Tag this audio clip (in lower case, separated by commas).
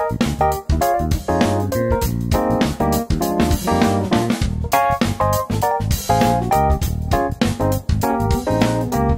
music